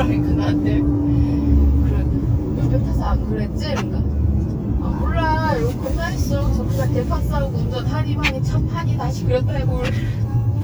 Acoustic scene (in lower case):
car